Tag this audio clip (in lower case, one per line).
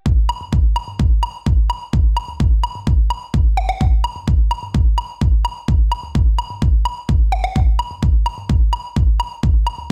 techno
dance music
electronic dance music
electronica
music
electronic music